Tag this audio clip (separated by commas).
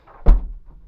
Vehicle, Car, Motor vehicle (road)